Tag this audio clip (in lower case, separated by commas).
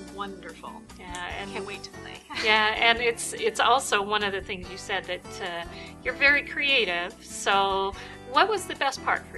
music, speech